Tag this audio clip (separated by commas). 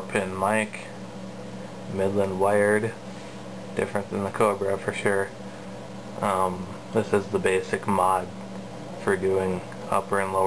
Radio, Speech